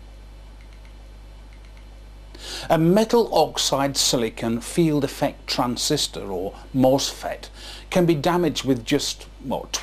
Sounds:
Speech

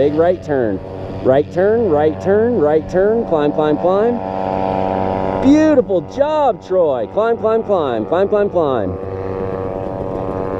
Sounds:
Speech

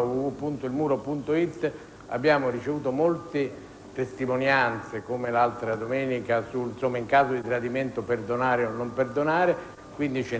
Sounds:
Speech

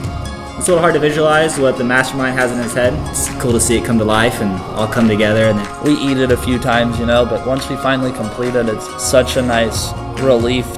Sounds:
Speech, Music

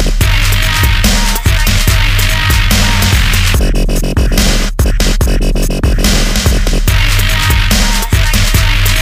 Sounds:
Music, Dubstep, Electronic music

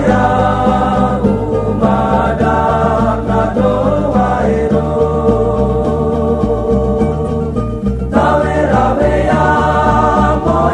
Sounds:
Music, Happy music

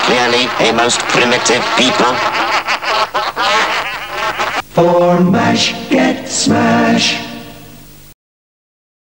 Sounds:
Music, Speech

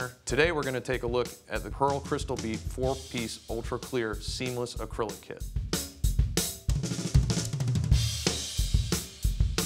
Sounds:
Speech, Music, Musical instrument, Hi-hat, Snare drum, Cymbal, Drum, Bass drum, Drum kit

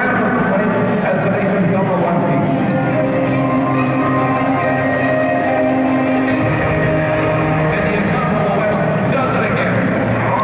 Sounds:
Musical instrument, Music, Speech

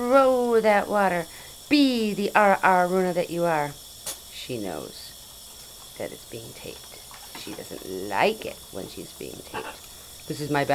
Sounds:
inside a small room, Speech

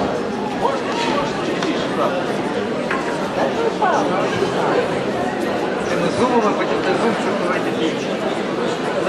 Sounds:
Speech

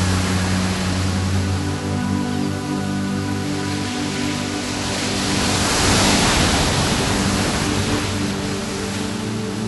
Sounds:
Music

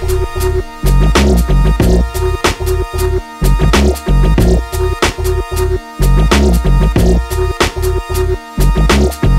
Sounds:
Music

